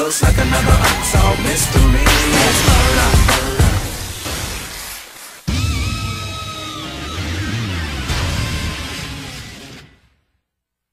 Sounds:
Music

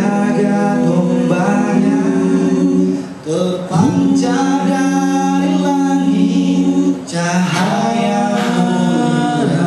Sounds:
Singing, Male singing, A capella, Vocal music

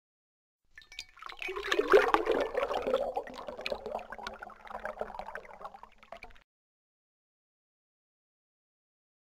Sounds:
Chink

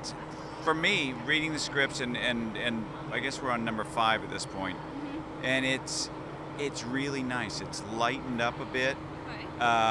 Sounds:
Speech

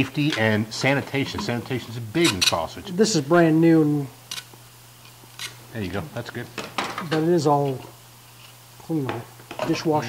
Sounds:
Speech, inside a small room

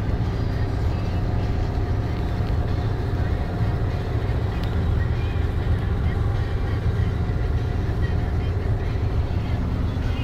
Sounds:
Vehicle, Music

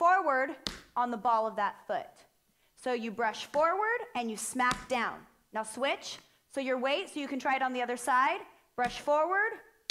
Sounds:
Speech

